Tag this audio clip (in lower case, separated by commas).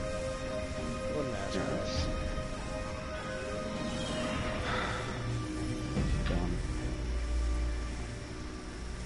speech